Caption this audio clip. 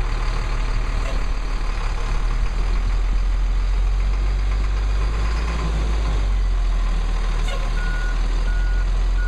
A truck reversing beeps